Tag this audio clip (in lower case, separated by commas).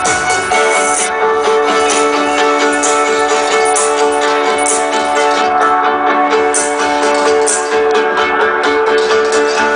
musical instrument, music